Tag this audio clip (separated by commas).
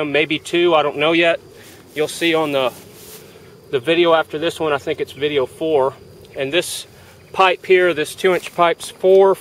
Speech